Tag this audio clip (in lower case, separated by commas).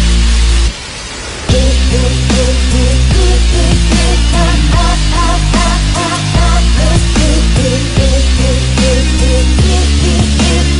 grunge